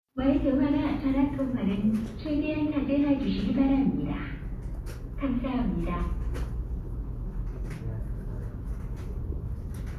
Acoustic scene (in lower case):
subway station